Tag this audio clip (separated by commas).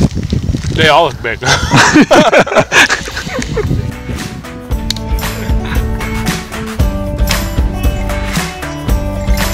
Speech, Music